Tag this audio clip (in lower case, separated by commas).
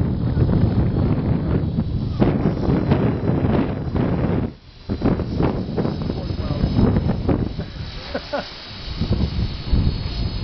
wind noise, wind noise (microphone), wind